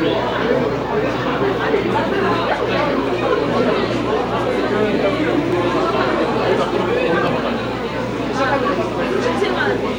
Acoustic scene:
crowded indoor space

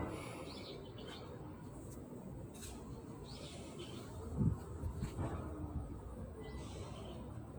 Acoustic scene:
residential area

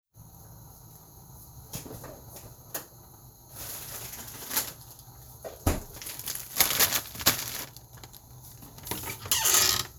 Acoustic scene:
kitchen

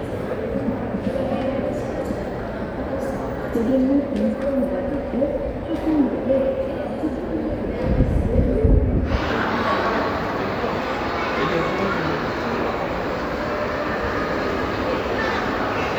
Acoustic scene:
crowded indoor space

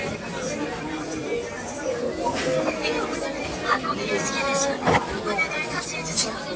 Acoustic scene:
crowded indoor space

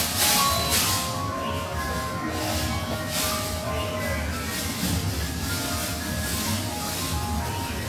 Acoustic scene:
cafe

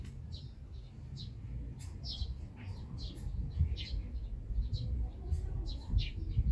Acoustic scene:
park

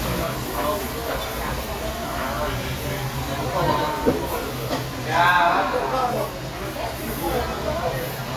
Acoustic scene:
restaurant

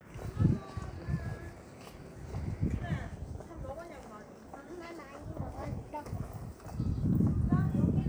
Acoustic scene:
residential area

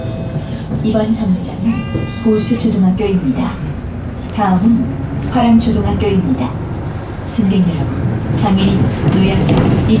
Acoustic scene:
bus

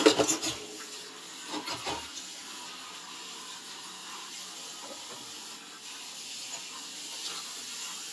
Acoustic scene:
kitchen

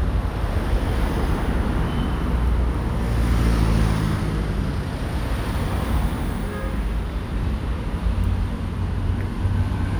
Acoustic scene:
street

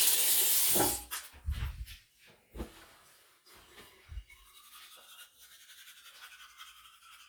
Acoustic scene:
restroom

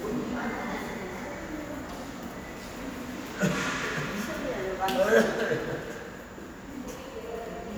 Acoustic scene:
subway station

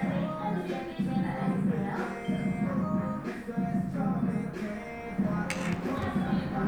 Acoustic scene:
cafe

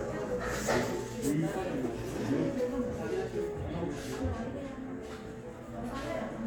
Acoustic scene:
crowded indoor space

